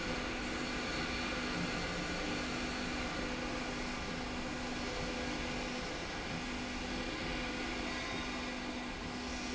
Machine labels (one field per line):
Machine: slide rail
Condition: normal